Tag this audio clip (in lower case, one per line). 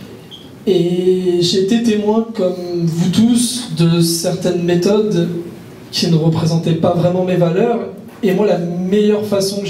speech